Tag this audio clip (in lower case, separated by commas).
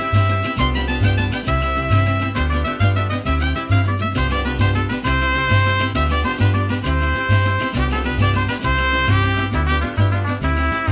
swing music, music